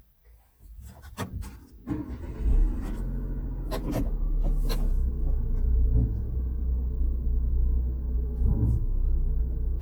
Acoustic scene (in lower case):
car